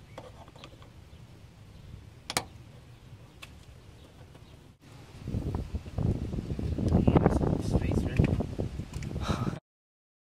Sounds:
Wind noise (microphone), Wind

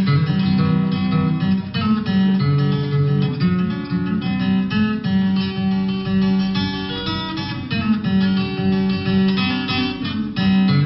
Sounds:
Music

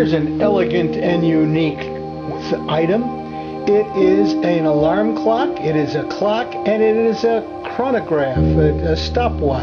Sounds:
New-age music, Music, Speech

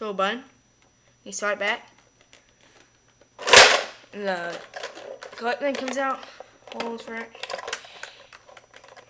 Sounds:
Child speech, Speech

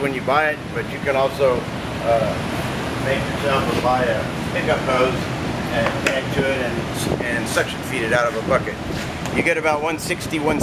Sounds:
Speech

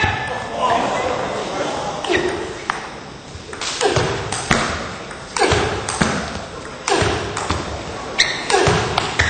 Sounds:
Speech, Ping

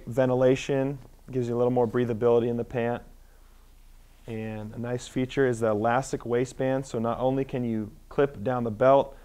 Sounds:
Speech

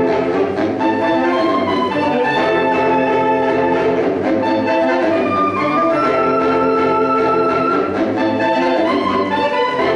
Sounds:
Saxophone, Music, Orchestra

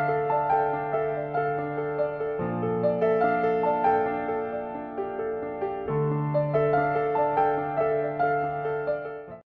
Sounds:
Music

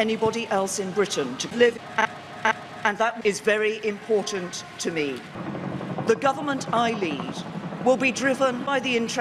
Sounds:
Female speech, Narration, Speech

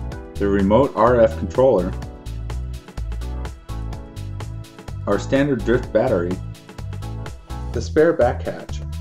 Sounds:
Music, Speech

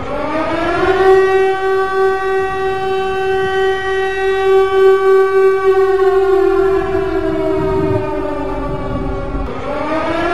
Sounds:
Siren

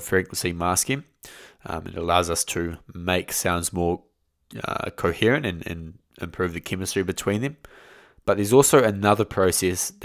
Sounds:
Speech

